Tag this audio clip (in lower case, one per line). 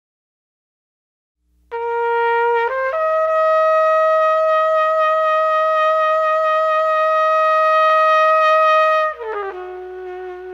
playing cornet